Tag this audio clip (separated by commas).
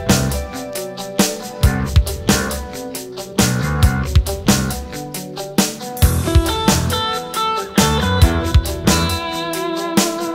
Music